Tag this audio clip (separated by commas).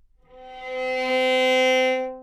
Bowed string instrument, Musical instrument, Music